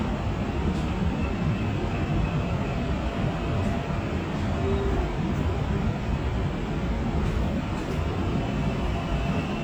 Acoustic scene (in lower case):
subway train